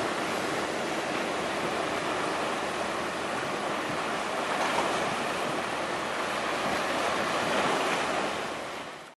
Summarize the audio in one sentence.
Water is splashing as waves crash